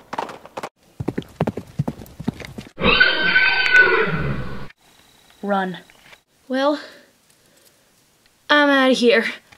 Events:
[0.74, 9.55] background noise
[0.93, 2.69] clip-clop
[2.75, 4.67] whinny
[4.71, 6.24] cricket
[6.67, 7.19] breathing
[8.46, 9.38] female speech
[9.43, 9.55] generic impact sounds

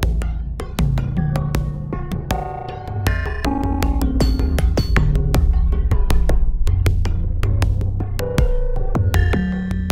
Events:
[0.00, 9.91] music

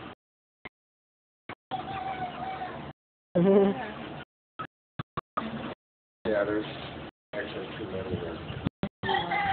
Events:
[0.00, 9.52] background noise
[3.30, 3.91] laughter
[6.19, 9.52] conversation
[7.26, 9.52] chicken
[7.28, 8.35] male speech
[8.96, 9.52] female speech

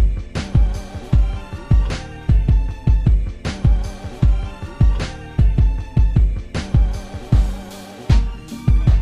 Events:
[0.00, 9.01] music

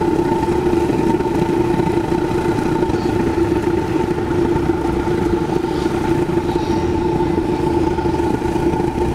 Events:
[0.00, 9.14] boiling
[0.00, 9.14] mechanisms

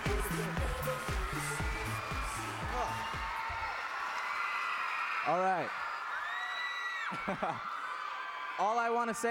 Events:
[0.00, 2.84] male singing
[0.00, 3.29] music
[0.00, 9.30] cheering
[2.53, 2.89] human sounds
[4.12, 4.20] tick
[5.22, 5.66] man speaking
[6.34, 6.46] tick
[7.06, 7.58] laughter
[7.64, 7.78] tick
[8.56, 9.30] man speaking

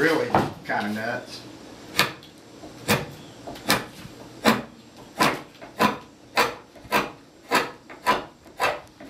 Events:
[0.00, 9.05] background noise
[0.64, 1.44] man speaking
[4.99, 5.13] bird

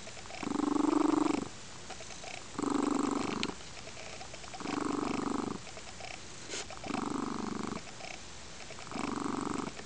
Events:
[0.00, 1.50] purr
[0.00, 9.85] background noise
[1.85, 3.50] purr
[3.39, 3.50] tick
[3.72, 5.55] purr
[5.68, 6.17] purr
[6.48, 6.62] surface contact
[6.71, 8.16] purr
[8.58, 9.85] purr

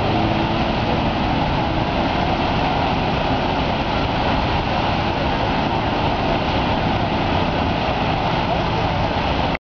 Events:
[0.01, 9.59] motor vehicle (road)

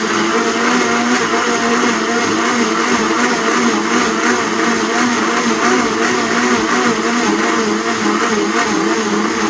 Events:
[0.00, 9.45] blender

